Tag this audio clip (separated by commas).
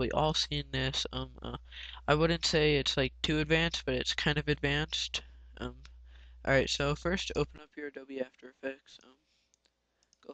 Speech